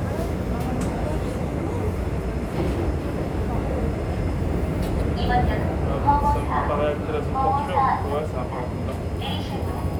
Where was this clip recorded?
on a subway train